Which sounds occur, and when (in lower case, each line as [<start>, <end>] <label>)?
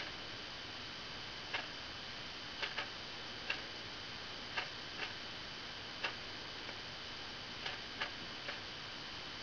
[0.01, 9.42] mechanisms
[1.52, 1.61] tick
[2.60, 2.66] tick
[2.78, 2.85] tick
[3.47, 3.54] tick
[4.55, 4.64] tick
[4.98, 5.07] tick
[6.02, 6.11] tick
[6.65, 6.71] tick
[7.63, 7.72] tick
[8.00, 8.08] tick
[8.44, 8.52] tick